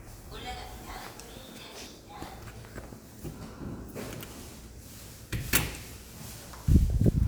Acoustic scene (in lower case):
elevator